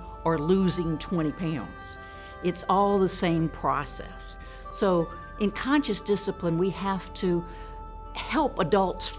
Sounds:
music, speech

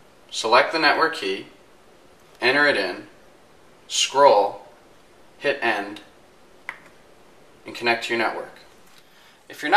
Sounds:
speech

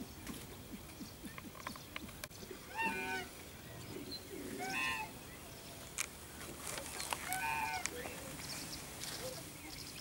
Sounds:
animal

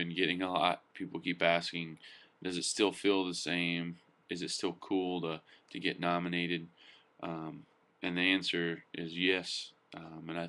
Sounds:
speech

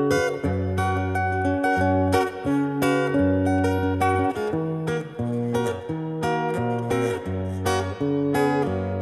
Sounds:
electric guitar, strum, plucked string instrument, musical instrument, guitar, music

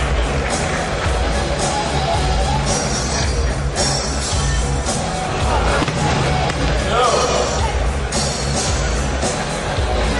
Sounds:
speech, music

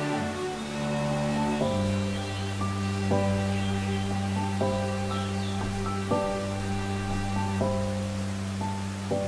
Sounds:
raindrop, music

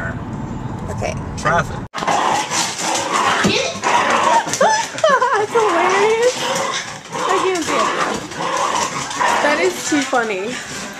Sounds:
dog, vehicle, speech

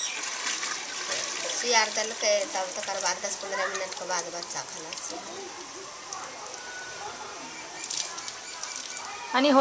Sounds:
speech, outside, rural or natural

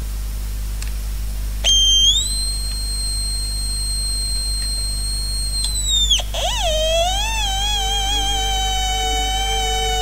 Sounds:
theremin, music

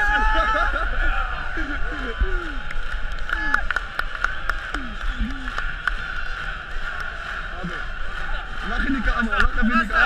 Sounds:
music, speech

